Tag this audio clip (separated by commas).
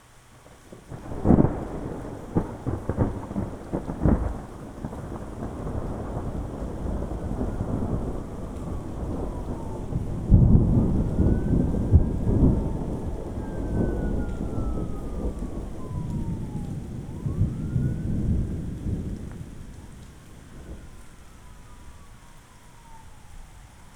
Thunderstorm, Rain, Water, Thunder